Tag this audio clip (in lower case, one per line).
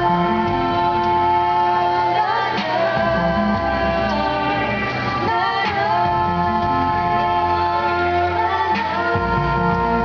music